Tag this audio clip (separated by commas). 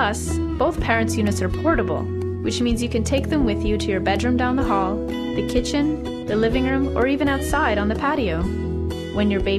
Music, Speech